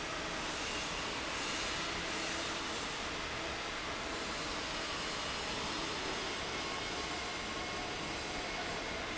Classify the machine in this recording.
fan